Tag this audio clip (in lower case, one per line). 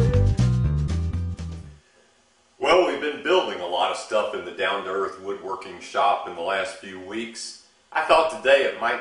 speech
music